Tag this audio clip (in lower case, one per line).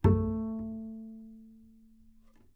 music
musical instrument
bowed string instrument